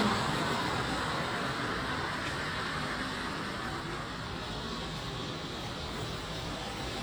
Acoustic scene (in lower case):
street